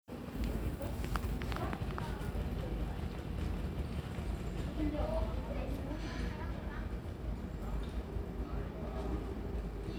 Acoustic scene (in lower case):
residential area